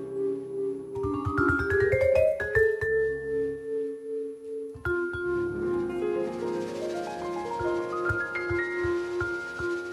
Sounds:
xylophone, Vibraphone, Musical instrument, Marimba, Percussion, inside a large room or hall, Music

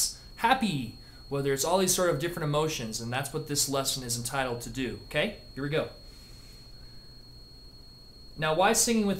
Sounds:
Speech

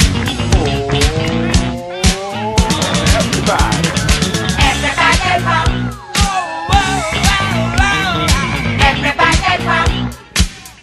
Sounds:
Funk, Music

